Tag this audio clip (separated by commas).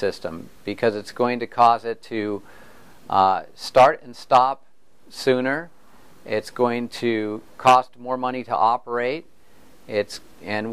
Speech